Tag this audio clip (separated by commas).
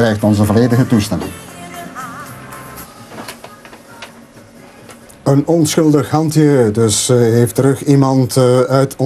Music, Speech